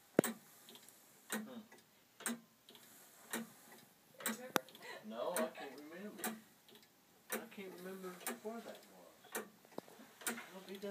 A ticking noise overshadows a quiet masculine voice